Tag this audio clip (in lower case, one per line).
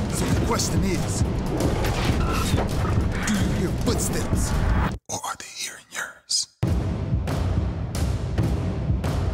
music
boom
speech